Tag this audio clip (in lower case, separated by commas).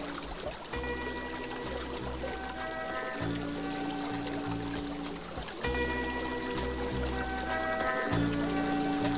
pumping water